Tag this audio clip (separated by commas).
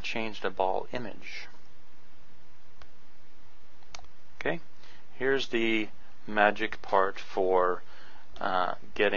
Speech